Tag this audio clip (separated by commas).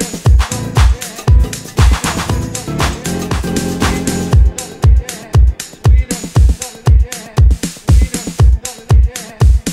Music, Disco